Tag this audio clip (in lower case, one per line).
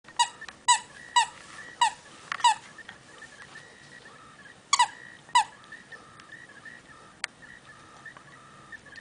squeak
speech